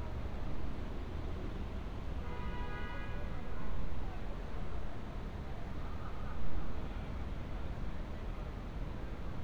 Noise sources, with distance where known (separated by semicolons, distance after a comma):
engine of unclear size; car horn; person or small group talking, far